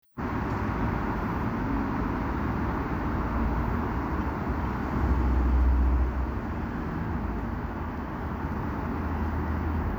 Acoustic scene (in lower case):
street